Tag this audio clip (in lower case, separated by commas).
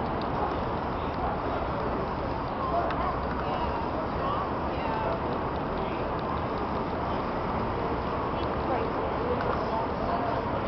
spray, speech